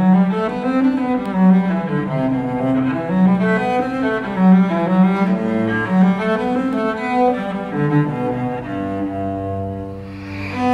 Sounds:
music

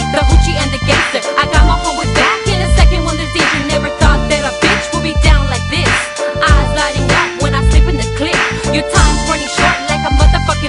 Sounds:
rapping
hip hop music
music

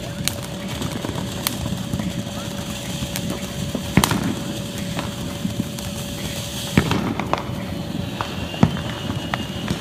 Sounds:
firecracker
fireworks
speech

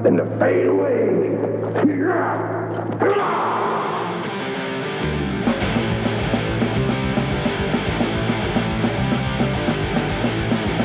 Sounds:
music
speech

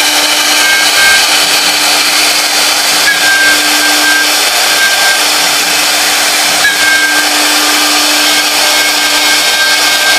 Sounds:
wood
tools
inside a large room or hall

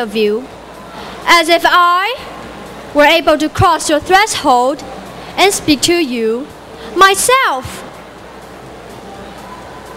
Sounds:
speech
woman speaking
monologue

